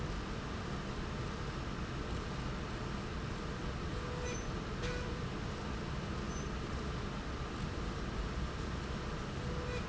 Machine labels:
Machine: slide rail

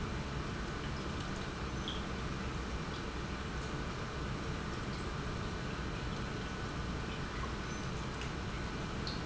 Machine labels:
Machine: pump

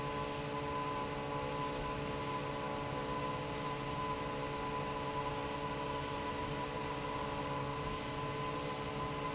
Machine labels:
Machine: fan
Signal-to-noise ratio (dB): -6 dB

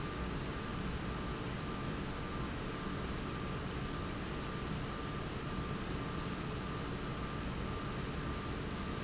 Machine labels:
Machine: pump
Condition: normal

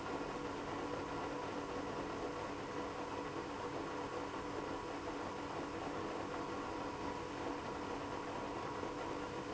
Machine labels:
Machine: pump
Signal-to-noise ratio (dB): 6 dB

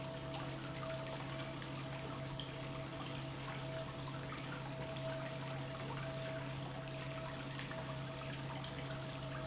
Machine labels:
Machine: pump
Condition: normal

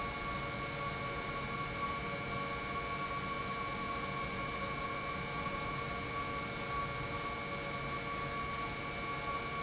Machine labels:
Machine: pump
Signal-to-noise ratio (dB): -6 dB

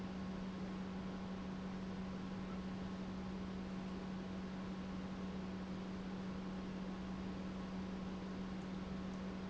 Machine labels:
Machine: pump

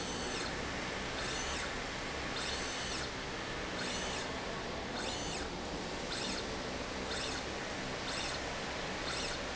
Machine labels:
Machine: slide rail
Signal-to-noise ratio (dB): -6 dB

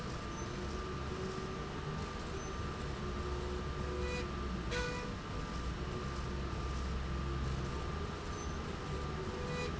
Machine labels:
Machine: slide rail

